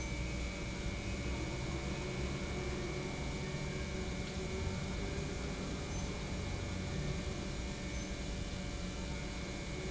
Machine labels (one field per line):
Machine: pump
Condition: normal